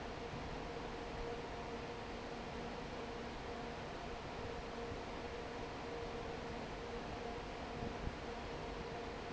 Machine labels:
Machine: fan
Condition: normal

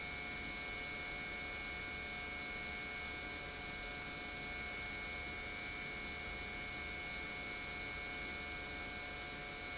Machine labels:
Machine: pump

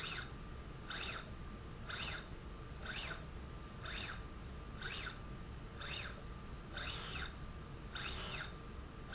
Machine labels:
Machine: slide rail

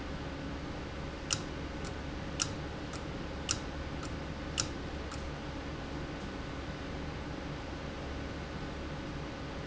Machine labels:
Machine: valve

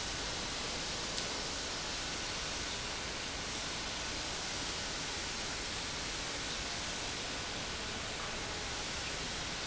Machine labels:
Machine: pump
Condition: normal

